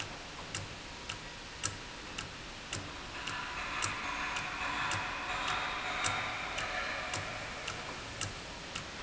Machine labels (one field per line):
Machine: valve